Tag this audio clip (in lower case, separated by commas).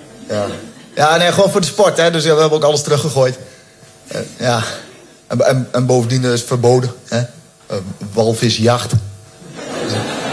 speech